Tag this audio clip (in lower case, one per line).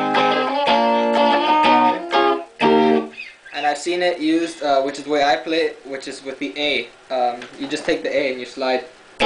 speech
music